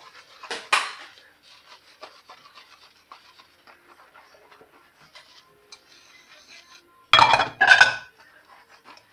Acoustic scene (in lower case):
kitchen